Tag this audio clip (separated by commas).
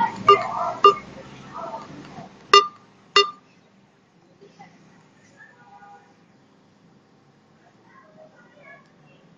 Speech